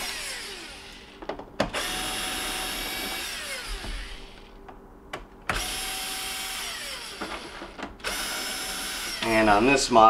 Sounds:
opening or closing drawers

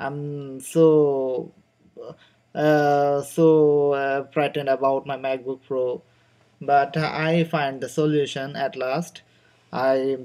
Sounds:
speech

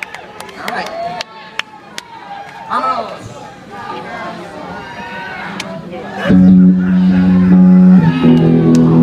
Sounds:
music
speech

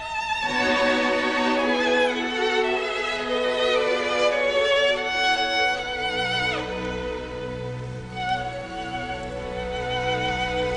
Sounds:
violin
musical instrument
fiddle
music

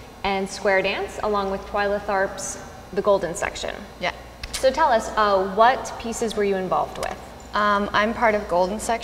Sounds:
speech

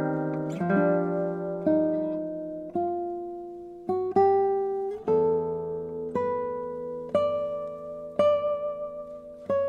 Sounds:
plucked string instrument
strum
guitar
musical instrument
acoustic guitar
music

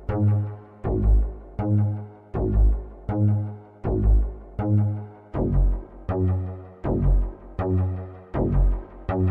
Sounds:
music

